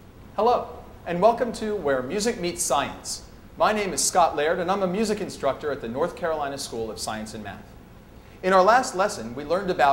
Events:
[0.01, 9.92] background noise
[0.32, 0.76] man speaking
[1.01, 3.13] man speaking
[3.54, 7.64] man speaking
[8.38, 9.92] man speaking

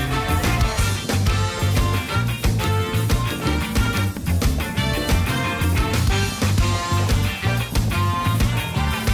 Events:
[0.01, 9.13] music

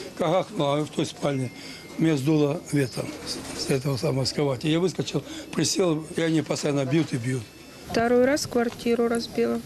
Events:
[0.00, 2.94] music
[0.00, 7.89] background noise
[0.15, 1.45] man speaking
[0.81, 1.06] generic impact sounds
[1.54, 1.89] breathing
[1.95, 2.99] man speaking
[2.77, 2.94] chirp
[2.85, 3.77] generic impact sounds
[3.18, 3.31] chirp
[3.47, 5.18] man speaking
[3.52, 3.61] chirp
[3.87, 4.03] chirp
[4.22, 4.39] chirp
[5.19, 5.45] breathing
[5.42, 6.37] music
[5.50, 7.43] man speaking
[6.09, 6.58] surface contact
[6.89, 7.39] surface contact
[7.06, 7.85] music
[7.87, 9.57] woman speaking
[7.87, 9.65] wind
[7.89, 7.94] tick
[8.64, 8.80] generic impact sounds

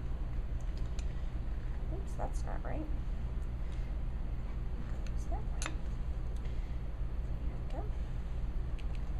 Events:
[0.00, 9.15] mechanisms
[0.51, 1.09] generic impact sounds
[1.96, 2.98] woman speaking
[3.31, 3.45] generic impact sounds
[3.66, 3.81] generic impact sounds
[5.00, 5.10] generic impact sounds
[5.09, 5.45] woman speaking
[5.56, 5.76] generic impact sounds
[6.32, 6.50] generic impact sounds
[6.35, 6.93] breathing
[7.63, 7.78] generic impact sounds
[7.67, 7.96] woman speaking
[8.68, 9.03] generic impact sounds

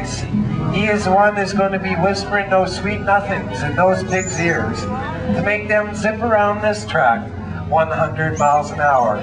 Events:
[0.00, 0.20] man speaking
[0.01, 9.22] speech noise
[0.01, 9.22] music
[0.65, 4.89] man speaking
[5.47, 7.22] man speaking
[7.72, 9.22] man speaking

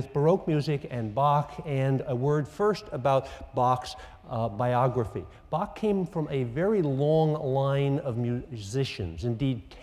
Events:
[0.00, 3.21] man speaking
[0.00, 9.82] background noise
[3.18, 3.43] breathing
[3.51, 3.93] man speaking
[3.94, 4.17] breathing
[4.26, 5.14] man speaking
[5.24, 5.45] breathing
[5.50, 6.03] man speaking
[6.15, 9.56] man speaking
[9.68, 9.82] man speaking

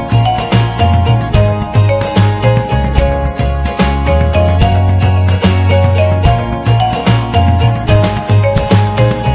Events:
[0.00, 9.34] music

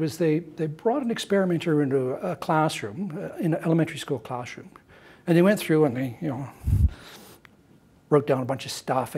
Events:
[0.00, 4.69] man speaking
[0.00, 9.15] background noise
[4.83, 5.23] breathing
[5.21, 6.50] man speaking
[6.49, 7.41] breathing
[6.57, 6.94] wind noise (microphone)
[8.03, 9.15] man speaking

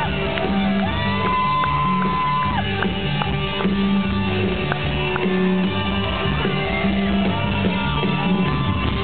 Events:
[0.00, 9.03] crowd
[0.00, 9.03] music
[0.31, 0.43] clapping
[0.72, 0.82] clapping
[0.78, 2.60] shout
[1.17, 1.30] clapping
[1.56, 1.72] clapping
[1.95, 2.04] clapping
[2.35, 2.49] clapping
[2.73, 2.83] clapping
[3.14, 3.31] clapping
[3.53, 3.65] clapping
[4.65, 4.77] clapping
[5.09, 5.22] clapping

